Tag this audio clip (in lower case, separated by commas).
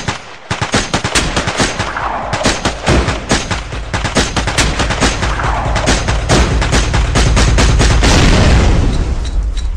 music, sound effect, soundtrack music